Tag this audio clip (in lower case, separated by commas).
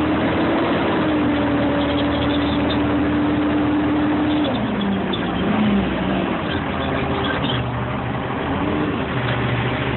vehicle, truck